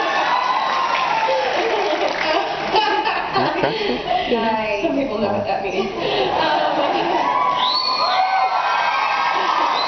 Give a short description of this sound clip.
A crowd cheers and a woman laughs and speaks